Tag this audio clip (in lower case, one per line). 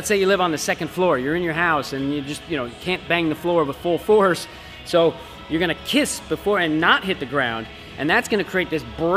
speech
music